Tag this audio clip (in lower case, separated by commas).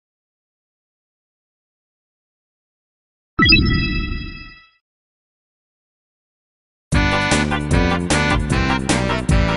music